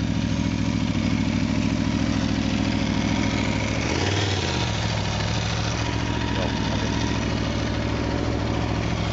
An engine hums, followed by a low, mumbled male voice